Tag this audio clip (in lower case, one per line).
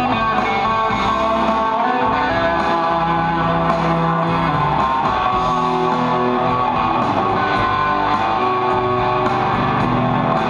music